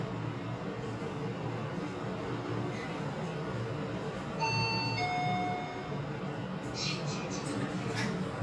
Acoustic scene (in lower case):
elevator